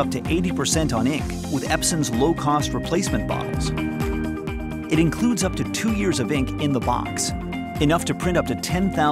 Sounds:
Music, Speech

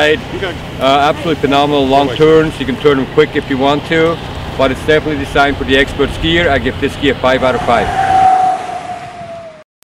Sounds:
Speech

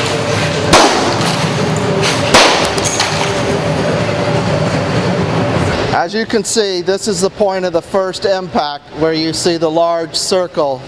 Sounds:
Speech

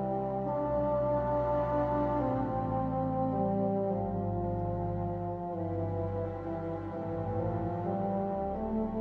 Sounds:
Tender music, Sad music, Music

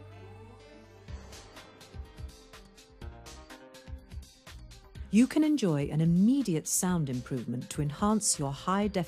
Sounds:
Music, Sound effect, Speech

